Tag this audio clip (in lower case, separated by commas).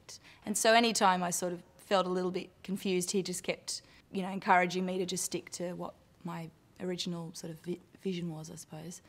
female speech